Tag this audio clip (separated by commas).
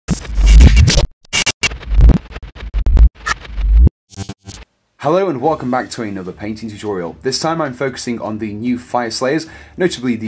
Speech, Music